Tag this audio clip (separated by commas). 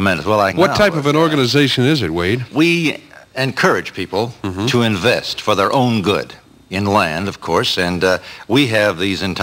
Speech